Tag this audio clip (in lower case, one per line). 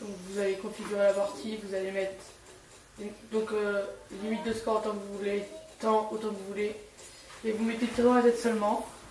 speech